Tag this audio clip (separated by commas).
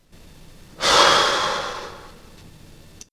Breathing, Respiratory sounds, Human voice, Sigh